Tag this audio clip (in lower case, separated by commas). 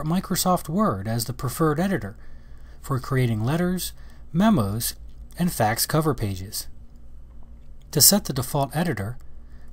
speech